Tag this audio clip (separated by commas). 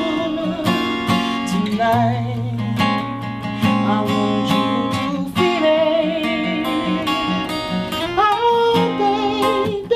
Music